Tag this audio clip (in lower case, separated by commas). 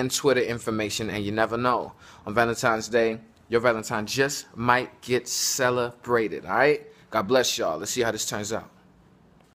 speech